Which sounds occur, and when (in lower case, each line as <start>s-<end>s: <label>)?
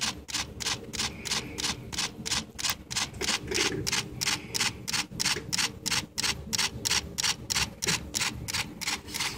0.0s-0.1s: camera
0.0s-9.3s: mechanisms
0.2s-0.4s: camera
0.5s-0.7s: camera
0.9s-1.0s: camera
1.2s-1.4s: camera
1.5s-1.7s: camera
1.9s-2.0s: camera
2.2s-2.4s: camera
2.5s-2.7s: camera
2.8s-3.0s: camera
3.1s-3.9s: generic impact sounds
3.2s-3.3s: camera
3.5s-3.6s: camera
3.8s-4.0s: camera
4.1s-4.3s: camera
4.5s-4.7s: camera
4.8s-5.0s: camera
5.1s-5.3s: camera
5.3s-5.4s: generic impact sounds
5.5s-5.6s: camera
5.8s-6.0s: camera
6.1s-6.3s: camera
6.5s-6.7s: camera
6.8s-6.9s: camera
7.1s-7.3s: camera
7.4s-7.6s: camera
7.8s-8.0s: camera
7.8s-7.9s: generic impact sounds
8.1s-8.3s: camera
8.4s-8.6s: camera
8.8s-8.9s: camera
9.1s-9.3s: camera